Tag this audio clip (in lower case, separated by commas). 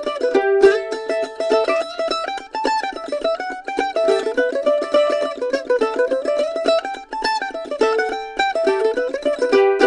fiddle, music, musical instrument